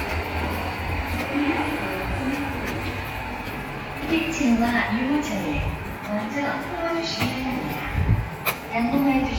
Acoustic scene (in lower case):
subway station